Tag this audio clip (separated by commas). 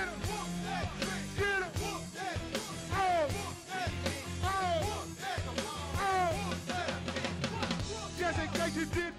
Music